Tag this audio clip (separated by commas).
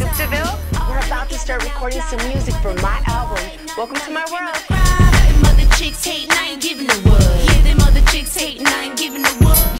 Dance music, Speech, Music